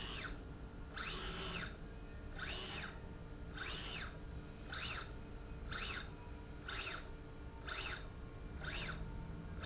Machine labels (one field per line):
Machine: slide rail